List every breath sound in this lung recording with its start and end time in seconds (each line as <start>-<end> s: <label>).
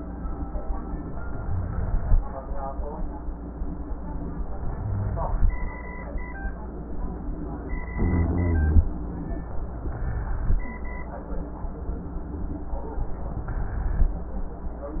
1.33-2.15 s: inhalation
1.33-2.15 s: rhonchi
4.69-5.50 s: inhalation
4.69-5.50 s: rhonchi
7.95-8.88 s: inhalation
7.95-8.88 s: rhonchi